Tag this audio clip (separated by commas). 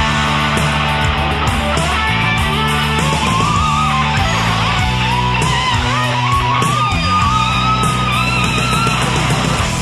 Music